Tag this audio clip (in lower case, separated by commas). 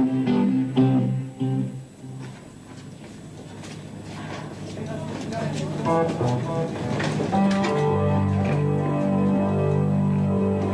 speech, music